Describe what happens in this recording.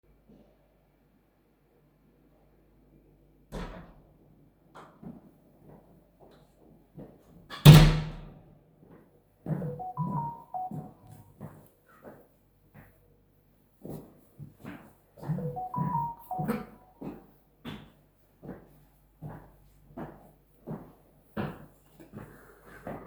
Person opened the kitchen door, and walked towards the table. While person was walking the door closed, and shortly after person has got a notification. Then person continued walking, and got a notification at the same time. After which the person cought.